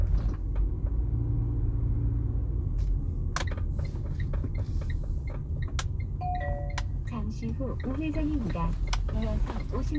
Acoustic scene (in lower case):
car